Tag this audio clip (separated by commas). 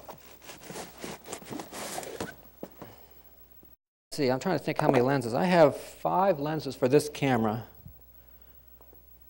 Speech